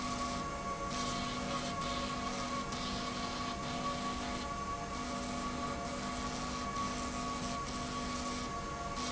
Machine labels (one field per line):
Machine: slide rail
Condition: abnormal